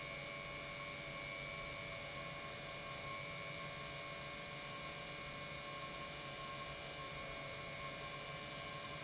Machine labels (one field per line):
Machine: pump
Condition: normal